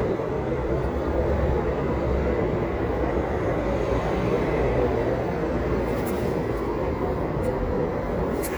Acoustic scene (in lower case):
residential area